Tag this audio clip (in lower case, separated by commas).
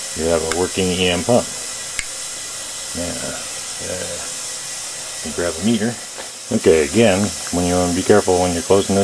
speech